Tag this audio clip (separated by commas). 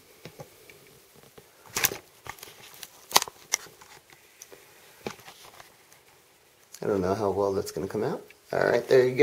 Crackle